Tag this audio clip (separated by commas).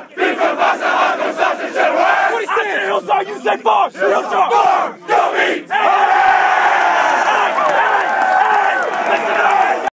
Speech, Cheering